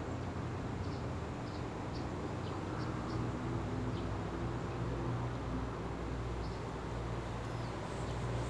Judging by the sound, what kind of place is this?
residential area